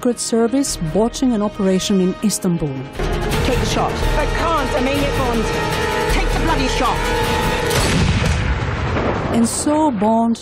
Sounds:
Speech, Music

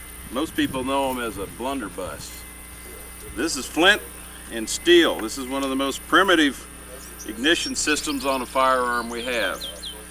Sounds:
Speech

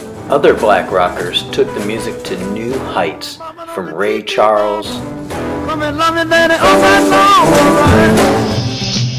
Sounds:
Speech, Rock and roll, Musical instrument, Rock music, Music

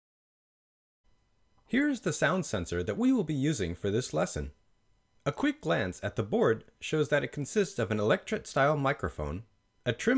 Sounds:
Speech

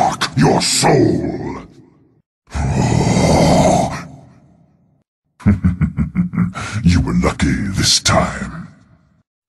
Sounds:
Speech, Sound effect

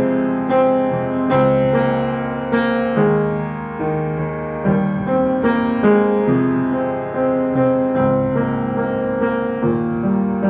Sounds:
Music

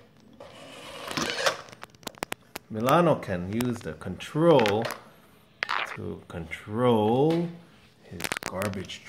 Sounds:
Speech

